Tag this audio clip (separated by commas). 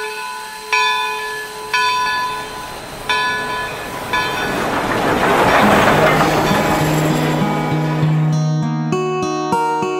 outside, urban or man-made, Music